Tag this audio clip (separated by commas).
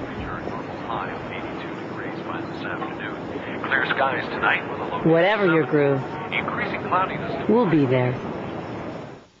Speech